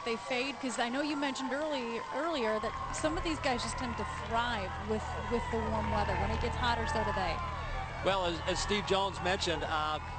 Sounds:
outside, urban or man-made, Speech

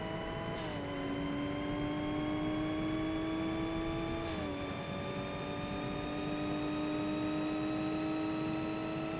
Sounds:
Car, Vehicle

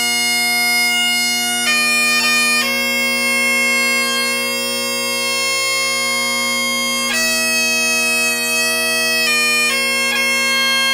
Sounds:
Music

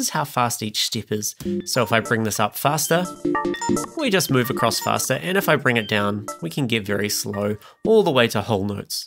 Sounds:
Music, Speech

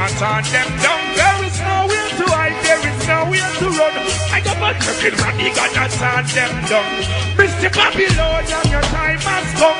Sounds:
Music

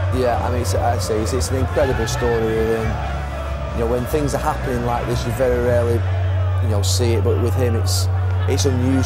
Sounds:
Music, Speech

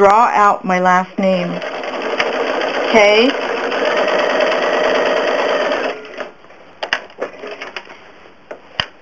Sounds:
Sewing machine, inside a small room, Speech

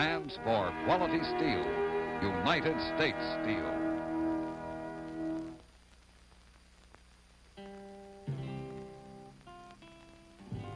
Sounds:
Music, Musical instrument, Speech

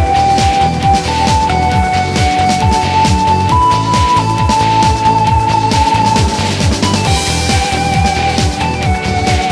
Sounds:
Music

